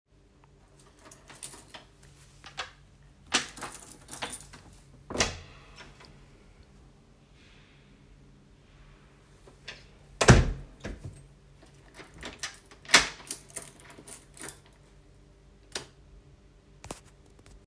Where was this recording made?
hallway